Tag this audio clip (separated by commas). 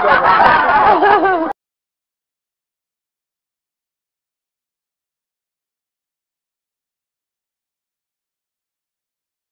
Chatter